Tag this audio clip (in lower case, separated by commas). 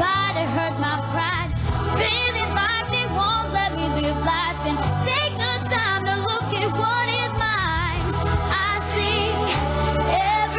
female singing, music